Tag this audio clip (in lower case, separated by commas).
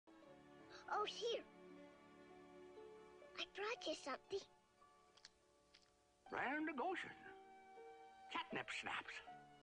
speech, music